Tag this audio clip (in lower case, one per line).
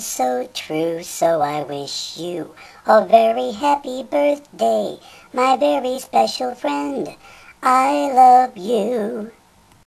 synthetic singing